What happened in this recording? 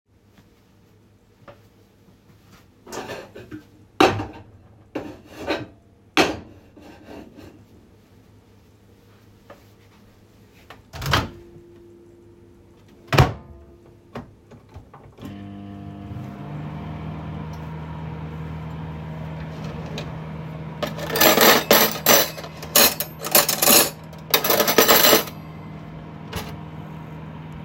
I placed the food into my bowl and placed it in the microwave. Then I grabbed cutlery while my food was warming up.